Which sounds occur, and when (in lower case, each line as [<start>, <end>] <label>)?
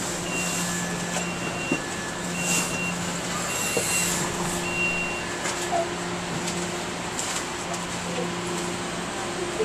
[0.00, 9.64] underground
[0.19, 5.84] beep
[0.28, 0.94] walk
[1.06, 1.26] generic impact sounds
[1.68, 2.05] walk
[2.29, 2.75] walk
[3.74, 4.02] walk
[5.38, 5.72] generic impact sounds
[6.23, 6.80] generic impact sounds
[7.15, 8.11] generic impact sounds
[7.56, 8.28] speech
[8.44, 8.71] generic impact sounds
[9.02, 9.64] speech